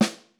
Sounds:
percussion, snare drum, drum, music, musical instrument

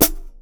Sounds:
cymbal, musical instrument, percussion, music, hi-hat

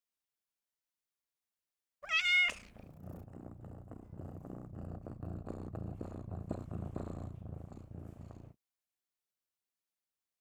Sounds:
domestic animals, cat, animal, meow, purr

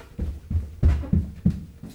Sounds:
run

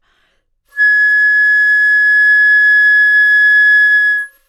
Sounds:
wind instrument, music, musical instrument

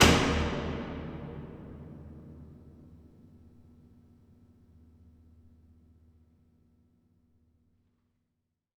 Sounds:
slam, domestic sounds, door

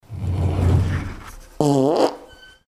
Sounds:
drawer open or close, fart, home sounds

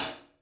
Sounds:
musical instrument, cymbal, music, hi-hat, percussion

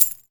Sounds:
domestic sounds, coin (dropping)

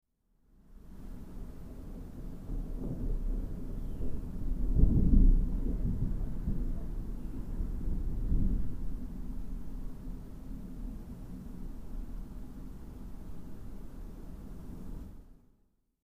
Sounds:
thunderstorm, thunder

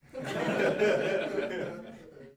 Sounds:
human voice, laughter, chuckle

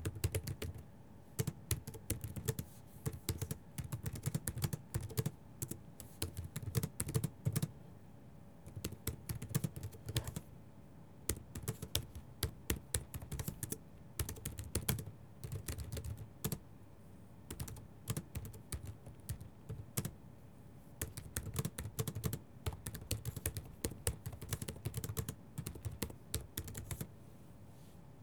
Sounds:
home sounds, typing

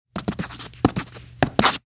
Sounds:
writing, home sounds

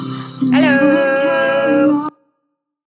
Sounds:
speech, human voice

